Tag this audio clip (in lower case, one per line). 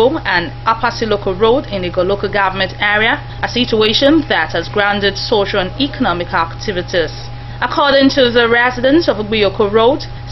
speech